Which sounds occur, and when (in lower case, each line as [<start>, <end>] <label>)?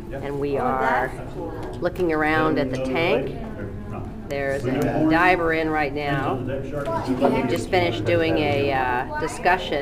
[0.00, 1.09] woman speaking
[0.00, 9.81] conversation
[0.00, 9.81] mechanisms
[1.20, 1.58] man speaking
[1.56, 1.73] generic impact sounds
[1.80, 4.02] woman speaking
[2.67, 2.78] tick
[3.37, 3.45] generic impact sounds
[4.22, 4.31] tick
[4.28, 6.33] woman speaking
[4.59, 5.13] man speaking
[4.74, 4.84] tick
[6.01, 7.27] man speaking
[6.79, 6.89] tick
[7.18, 7.25] generic impact sounds
[7.49, 9.81] woman speaking
[7.66, 8.71] man speaking
[8.47, 8.58] tick